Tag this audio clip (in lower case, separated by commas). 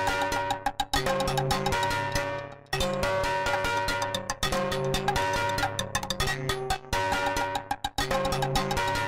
mallet percussion, marimba, glockenspiel